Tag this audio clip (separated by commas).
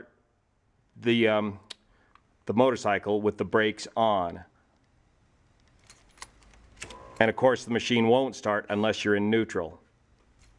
Speech